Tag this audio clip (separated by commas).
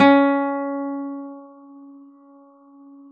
Plucked string instrument, Guitar, Music, Acoustic guitar, Musical instrument